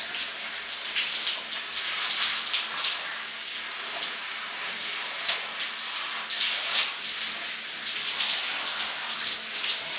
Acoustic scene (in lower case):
restroom